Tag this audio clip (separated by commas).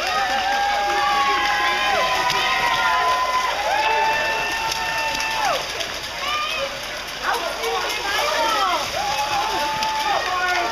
Speech